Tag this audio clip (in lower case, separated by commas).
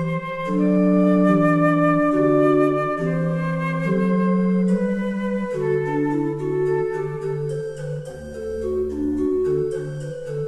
wind instrument, flute